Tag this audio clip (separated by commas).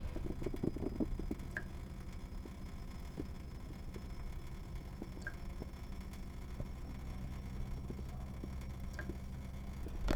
Liquid, Drip, Domestic sounds, Water tap